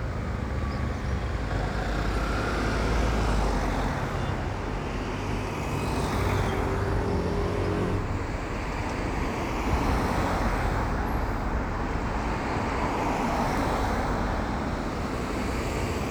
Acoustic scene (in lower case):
street